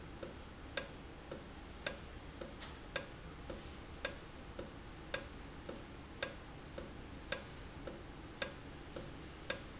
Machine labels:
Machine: valve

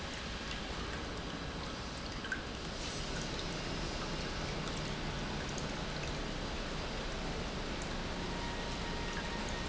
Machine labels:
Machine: pump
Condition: normal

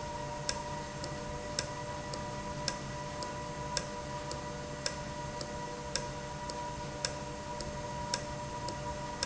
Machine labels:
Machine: valve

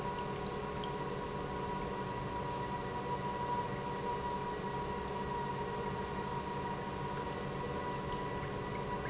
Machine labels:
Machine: pump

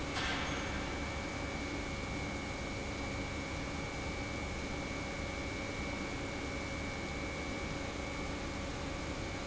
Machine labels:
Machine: pump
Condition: normal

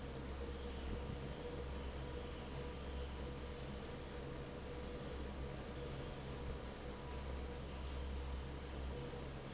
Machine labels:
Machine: fan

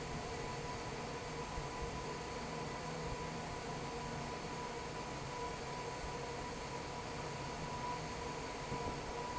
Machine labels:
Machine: fan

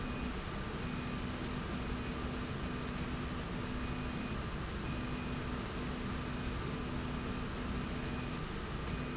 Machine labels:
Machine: slide rail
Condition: normal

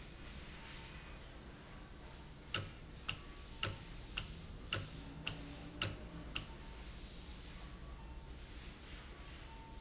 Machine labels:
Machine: valve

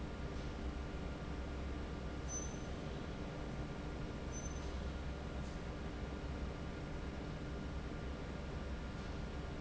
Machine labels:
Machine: fan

